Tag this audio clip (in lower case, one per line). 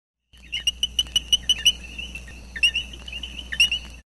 animal